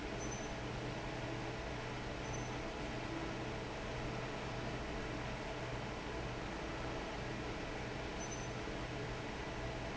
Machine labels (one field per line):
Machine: fan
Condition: normal